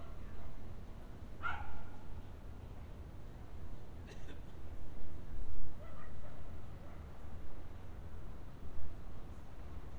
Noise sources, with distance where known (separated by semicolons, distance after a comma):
dog barking or whining